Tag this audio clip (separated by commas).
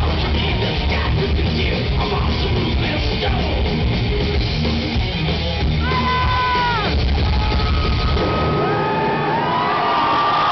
Music, Speech